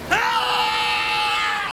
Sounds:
shout, human voice

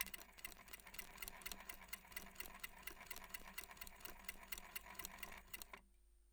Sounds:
mechanisms

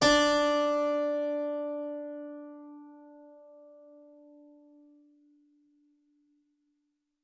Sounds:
musical instrument, keyboard (musical), music

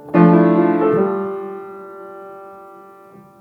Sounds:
piano, musical instrument, music, keyboard (musical)

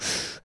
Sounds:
breathing, respiratory sounds

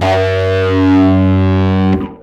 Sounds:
electric guitar, plucked string instrument, bass guitar, musical instrument, music, guitar

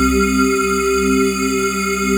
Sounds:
musical instrument, music, keyboard (musical), organ

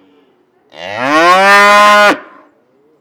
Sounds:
livestock, animal

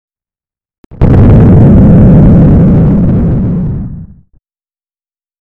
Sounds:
explosion, boom

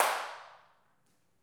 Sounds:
clapping, hands

